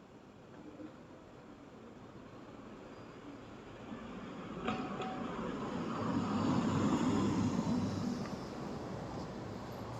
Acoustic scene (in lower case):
street